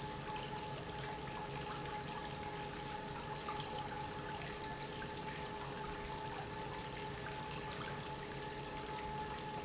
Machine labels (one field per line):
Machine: pump